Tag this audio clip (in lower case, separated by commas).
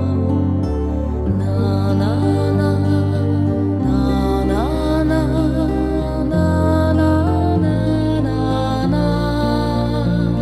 music